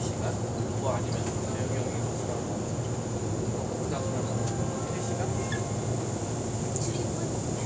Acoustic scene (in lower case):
subway station